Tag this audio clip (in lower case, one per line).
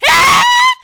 screaming
human voice